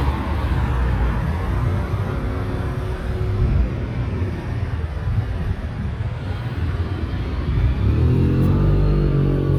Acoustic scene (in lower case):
street